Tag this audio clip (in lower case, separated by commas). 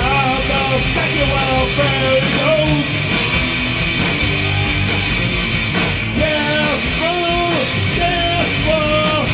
singing, music